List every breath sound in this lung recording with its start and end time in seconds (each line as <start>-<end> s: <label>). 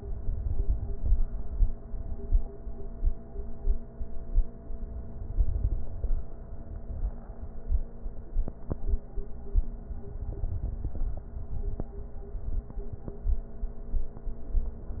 0.31-1.25 s: crackles
4.97-6.20 s: inhalation
4.97-6.20 s: crackles
10.08-11.30 s: inhalation
10.09-11.31 s: crackles